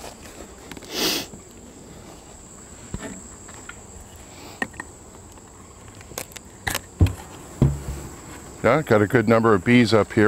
A person sniffs while walking, a rustling sound occurs and someone talks